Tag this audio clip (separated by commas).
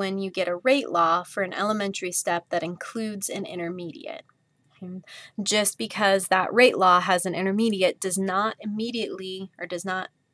Speech